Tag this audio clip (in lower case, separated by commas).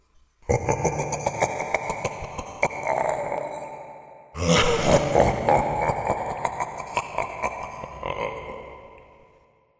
laughter, human voice